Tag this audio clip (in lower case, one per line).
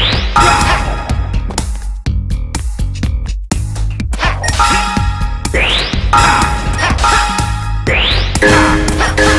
music